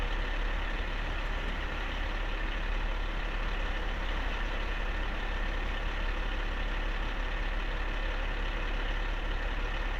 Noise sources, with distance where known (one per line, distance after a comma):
large-sounding engine, near